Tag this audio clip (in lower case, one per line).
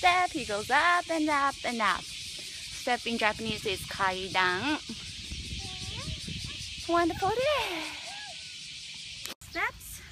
insect
cricket